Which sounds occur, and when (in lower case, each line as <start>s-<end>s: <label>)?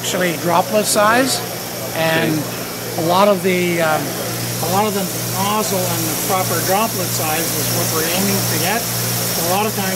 0.0s-9.9s: mechanisms
4.3s-9.9s: spray
9.3s-9.9s: man speaking